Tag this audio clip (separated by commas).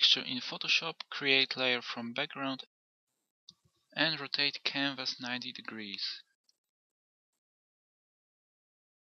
Speech